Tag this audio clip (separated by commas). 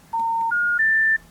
Alarm, Telephone